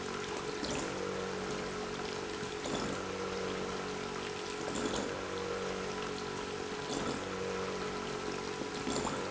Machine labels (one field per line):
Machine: pump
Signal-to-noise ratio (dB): 6 dB